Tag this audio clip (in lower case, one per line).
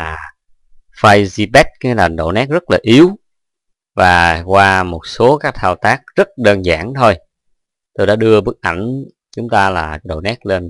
speech